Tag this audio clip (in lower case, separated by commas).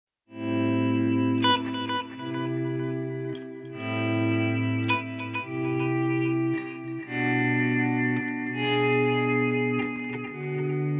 effects unit, musical instrument, music